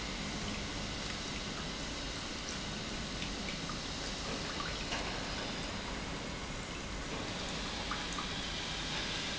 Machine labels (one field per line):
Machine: pump